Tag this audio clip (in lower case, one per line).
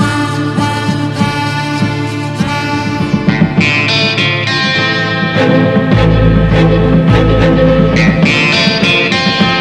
blues
music